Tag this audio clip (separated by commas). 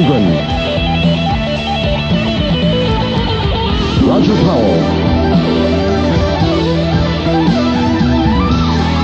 Music, Speech